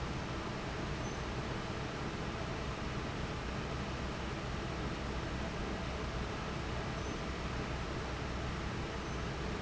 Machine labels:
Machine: fan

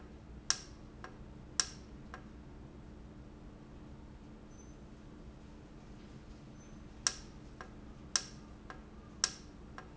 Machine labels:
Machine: valve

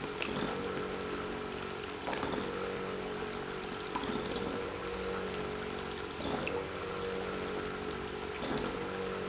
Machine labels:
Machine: pump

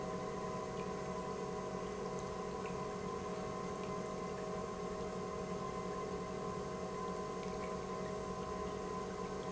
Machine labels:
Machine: pump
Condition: normal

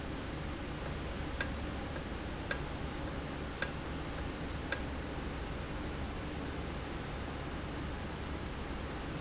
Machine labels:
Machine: valve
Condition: normal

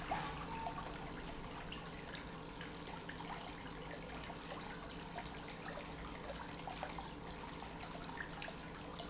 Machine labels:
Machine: pump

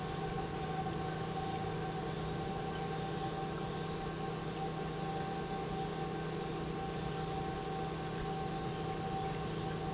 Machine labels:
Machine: pump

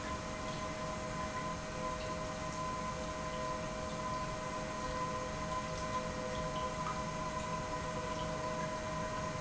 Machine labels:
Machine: pump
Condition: normal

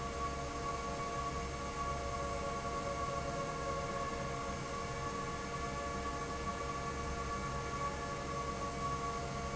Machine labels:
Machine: fan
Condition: normal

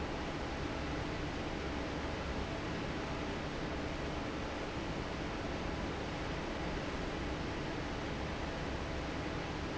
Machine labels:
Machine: fan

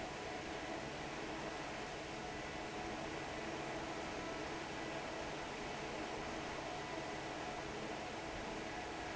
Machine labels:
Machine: fan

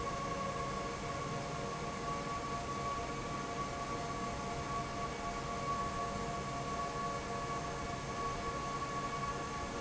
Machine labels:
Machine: fan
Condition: normal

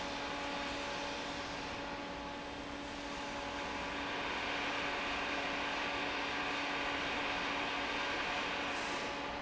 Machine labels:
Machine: fan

